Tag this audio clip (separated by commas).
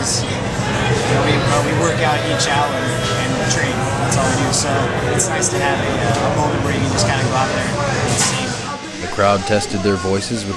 Male singing, Music, Speech